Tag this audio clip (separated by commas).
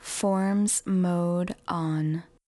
woman speaking, Human voice, Speech